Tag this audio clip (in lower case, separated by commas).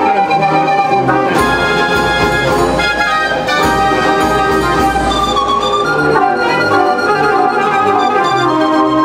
music, speech